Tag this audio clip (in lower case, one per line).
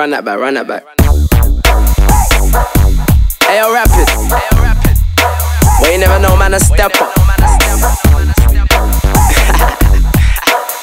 speech
music